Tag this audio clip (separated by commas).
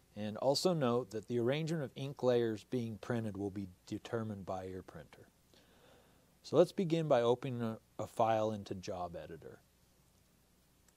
Speech